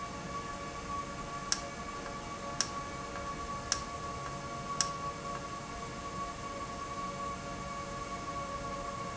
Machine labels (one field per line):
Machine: valve